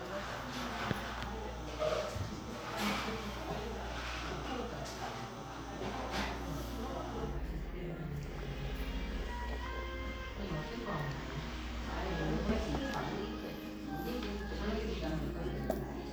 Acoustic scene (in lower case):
crowded indoor space